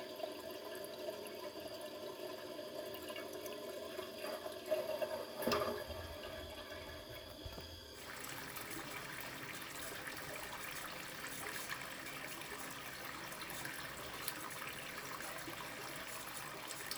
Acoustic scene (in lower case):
restroom